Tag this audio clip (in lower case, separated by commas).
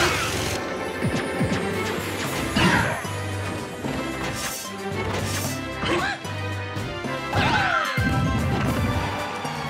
music